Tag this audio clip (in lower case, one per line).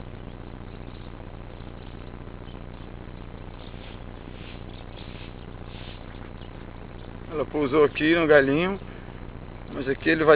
bird
speech